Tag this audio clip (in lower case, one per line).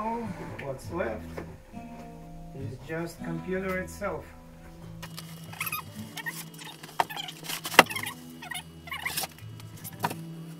speech
inside a small room
music